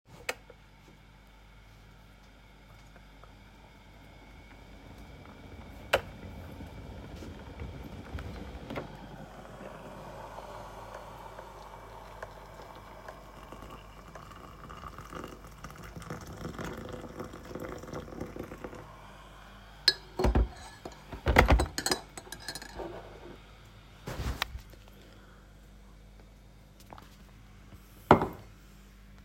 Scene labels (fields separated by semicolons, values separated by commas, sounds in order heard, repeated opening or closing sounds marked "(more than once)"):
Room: kitchen; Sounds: cutlery and dishes, running water, footsteps